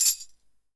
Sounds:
tambourine, percussion, music, musical instrument

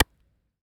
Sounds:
clapping, hands

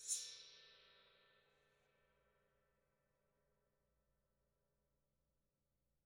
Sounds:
musical instrument, gong, music, percussion

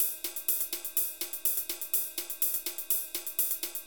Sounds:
animal, wild animals, bird, crow

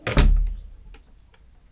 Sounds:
door, domestic sounds, vehicle, motor vehicle (road), car

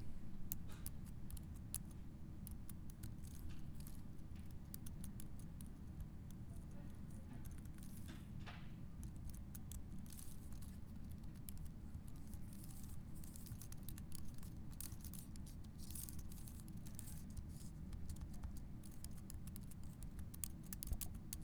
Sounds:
home sounds, typing

